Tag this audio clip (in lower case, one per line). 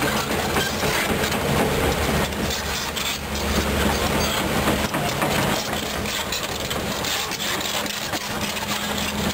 vehicle